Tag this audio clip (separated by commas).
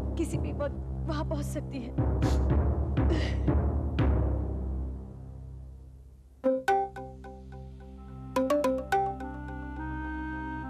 Music, Speech, Timpani